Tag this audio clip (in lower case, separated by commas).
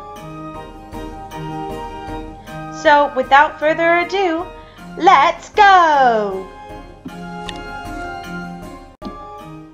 speech, music